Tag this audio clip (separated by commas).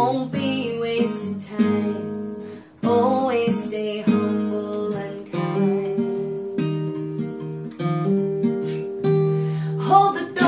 Singing, Music, Strum